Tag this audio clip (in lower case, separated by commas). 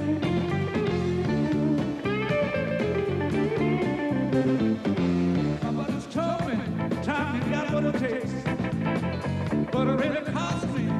blues, guitar, music, electric guitar, plucked string instrument, musical instrument